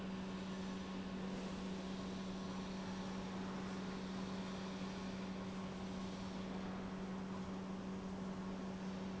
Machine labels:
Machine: pump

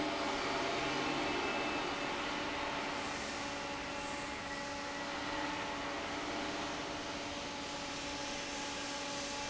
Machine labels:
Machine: fan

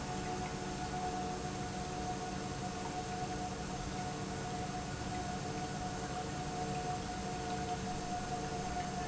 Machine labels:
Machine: pump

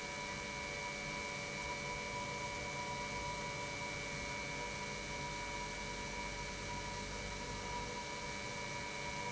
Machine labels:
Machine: pump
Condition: normal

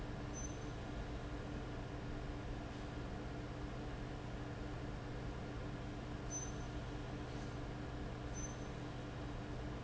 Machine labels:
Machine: fan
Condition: abnormal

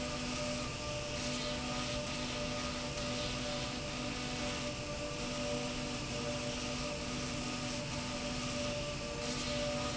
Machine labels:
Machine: slide rail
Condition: abnormal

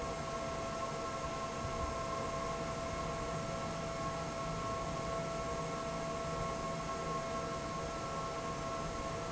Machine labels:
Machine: fan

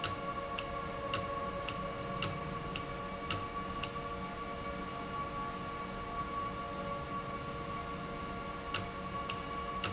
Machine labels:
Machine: valve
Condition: normal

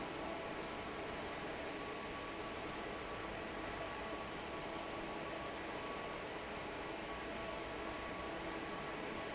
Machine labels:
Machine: fan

